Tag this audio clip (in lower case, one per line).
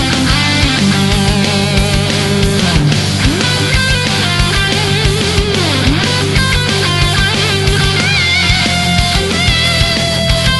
heavy metal
music